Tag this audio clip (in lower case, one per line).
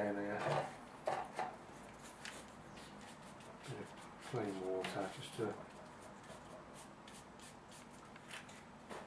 inside a small room
speech